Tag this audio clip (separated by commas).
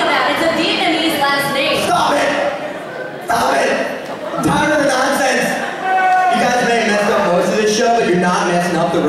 Speech